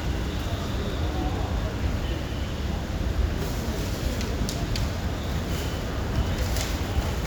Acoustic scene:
residential area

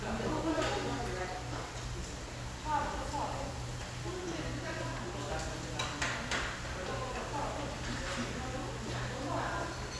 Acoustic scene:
restaurant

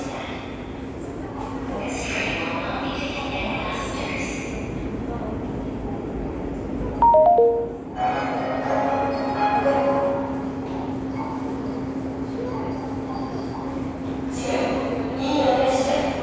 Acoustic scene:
subway station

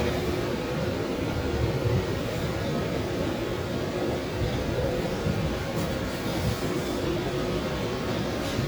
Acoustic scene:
subway station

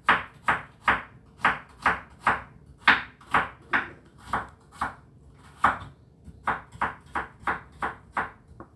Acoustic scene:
kitchen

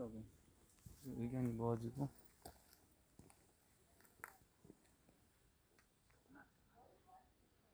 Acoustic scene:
park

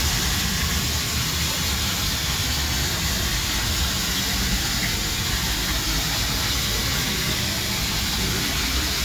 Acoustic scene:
park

